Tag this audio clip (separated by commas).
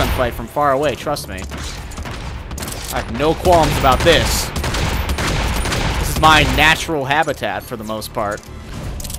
Gunshot